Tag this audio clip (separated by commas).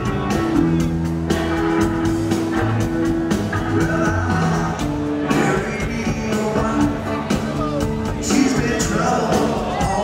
Music